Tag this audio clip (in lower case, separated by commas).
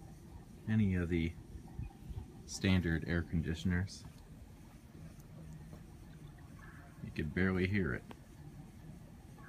speech